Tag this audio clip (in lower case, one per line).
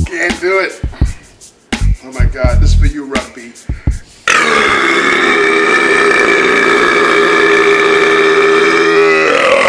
people burping